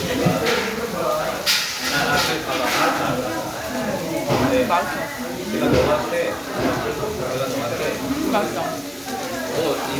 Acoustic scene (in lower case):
restaurant